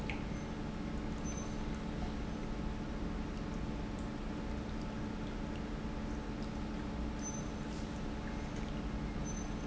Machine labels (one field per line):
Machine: pump